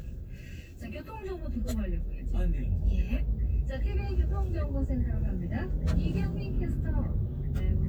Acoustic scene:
car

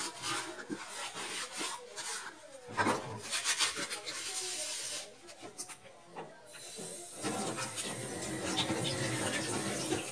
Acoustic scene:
kitchen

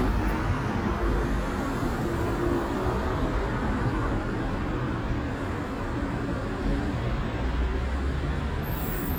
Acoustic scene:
street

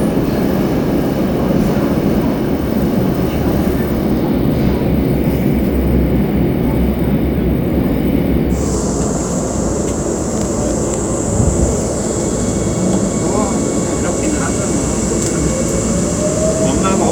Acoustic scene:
subway train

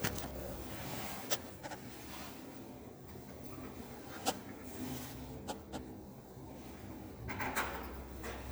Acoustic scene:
elevator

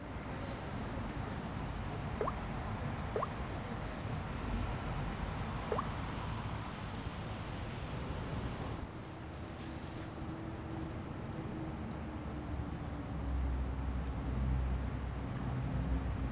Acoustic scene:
residential area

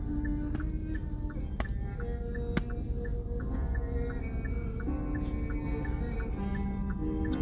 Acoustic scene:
car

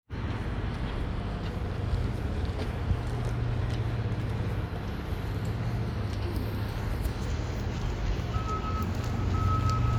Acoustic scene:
residential area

